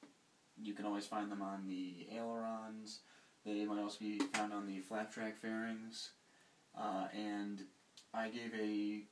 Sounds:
Speech

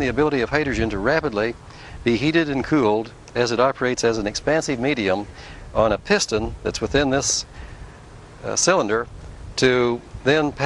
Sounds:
Speech

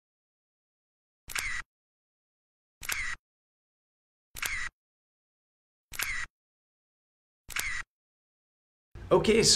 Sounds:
Speech, inside a small room, Single-lens reflex camera

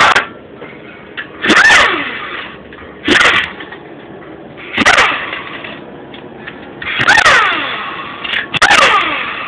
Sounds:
Speech, inside a small room

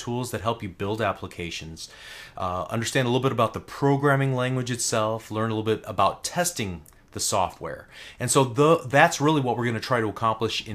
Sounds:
Speech

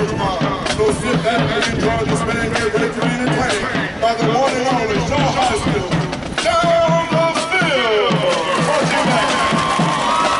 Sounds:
Speech, Music

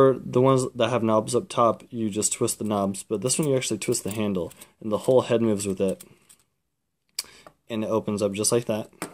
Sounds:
Speech

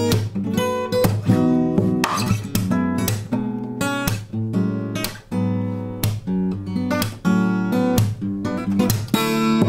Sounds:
Music, Plucked string instrument, Musical instrument, Acoustic guitar, Guitar

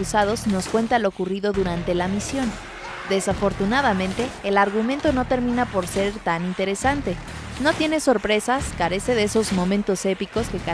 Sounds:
Music, Speech

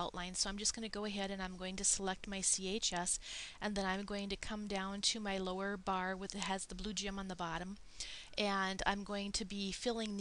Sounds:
Speech

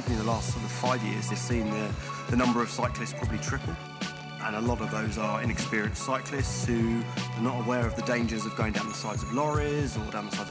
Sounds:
Music, Speech

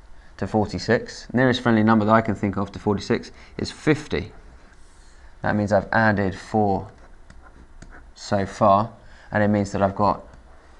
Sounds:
Speech

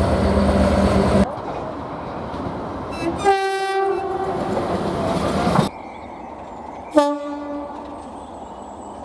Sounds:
train horning

